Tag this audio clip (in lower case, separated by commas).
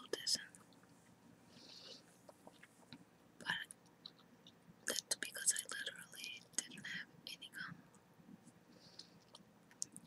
whispering, speech, people whispering